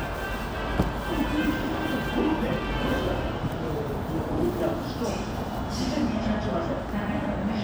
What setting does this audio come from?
subway station